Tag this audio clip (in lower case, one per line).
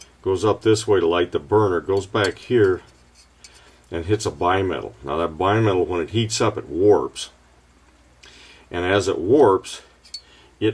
speech